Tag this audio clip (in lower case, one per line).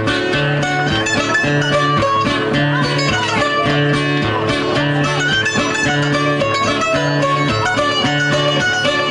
musical instrument
plucked string instrument
mandolin
music